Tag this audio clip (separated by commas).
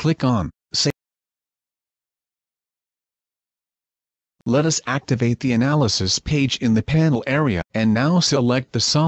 Speech